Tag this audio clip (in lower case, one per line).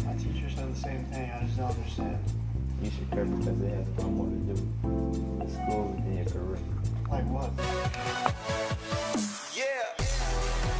music
speech